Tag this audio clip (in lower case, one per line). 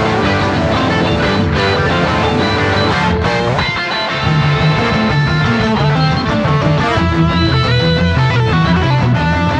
music
musical instrument
electric guitar
plucked string instrument
strum
guitar